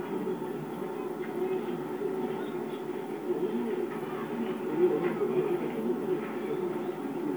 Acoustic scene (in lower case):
park